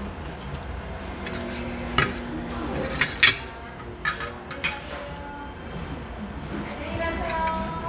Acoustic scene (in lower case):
restaurant